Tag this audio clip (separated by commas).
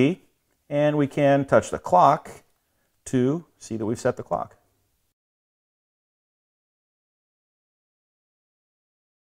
Speech